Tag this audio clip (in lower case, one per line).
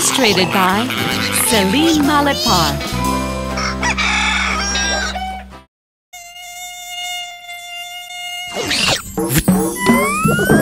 music
speech